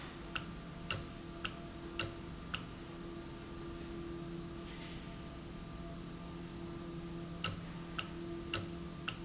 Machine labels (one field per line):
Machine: valve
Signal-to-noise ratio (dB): 0 dB